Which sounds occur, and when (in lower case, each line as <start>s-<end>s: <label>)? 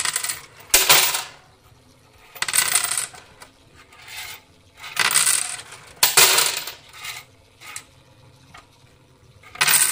0.0s-9.9s: mechanisms
9.6s-9.9s: generic impact sounds